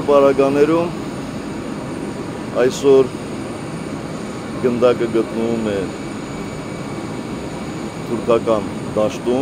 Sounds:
Speech

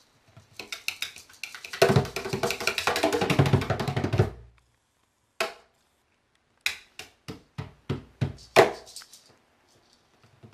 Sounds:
Music

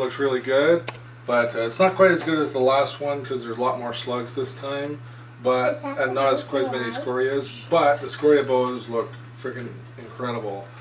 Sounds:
Speech

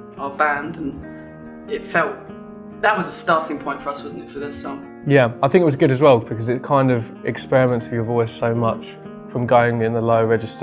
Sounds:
Music, Speech

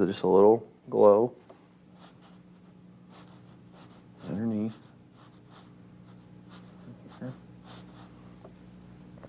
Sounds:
Speech, Writing

